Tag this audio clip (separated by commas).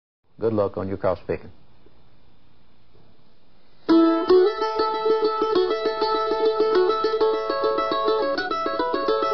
Mandolin, Plucked string instrument, Guitar, Musical instrument, Music